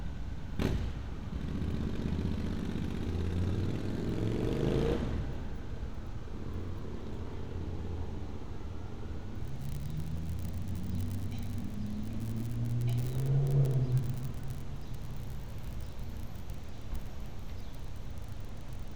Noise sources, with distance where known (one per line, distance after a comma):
medium-sounding engine